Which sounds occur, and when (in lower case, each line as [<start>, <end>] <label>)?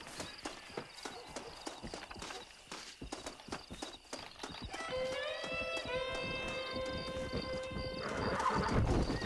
[0.00, 9.25] video game sound
[0.12, 0.23] run
[0.15, 0.43] cricket
[0.38, 0.48] run
[0.61, 1.10] cricket
[0.66, 0.77] run
[0.93, 1.09] run
[0.96, 2.37] bark
[1.26, 1.37] run
[1.35, 2.52] cricket
[1.58, 1.65] run
[1.86, 1.96] run
[2.11, 2.35] run
[2.65, 2.82] run
[3.02, 3.90] cricket
[3.09, 3.27] run
[3.51, 3.66] run
[3.83, 4.18] run
[4.06, 4.22] cricket
[4.34, 4.42] run
[4.47, 4.68] cricket
[4.68, 4.81] run
[4.70, 8.54] music
[4.87, 5.03] cricket
[5.00, 5.12] run
[5.33, 5.98] cricket
[5.35, 5.46] run
[5.71, 5.87] run
[6.10, 6.17] run
[6.16, 6.37] cricket
[6.39, 6.59] run
[6.50, 6.75] cricket
[6.78, 6.98] run
[6.93, 7.11] cricket
[7.28, 7.51] cricket
[7.53, 7.69] run
[7.70, 7.93] cricket
[7.92, 9.25] whinny
[8.02, 9.25] clip-clop
[8.16, 8.34] cricket
[8.54, 8.81] cricket
[8.97, 9.23] cricket